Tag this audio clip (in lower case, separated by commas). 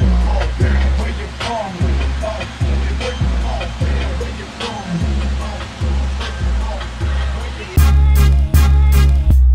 music, sound effect